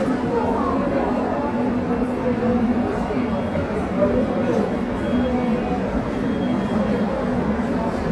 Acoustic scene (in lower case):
subway station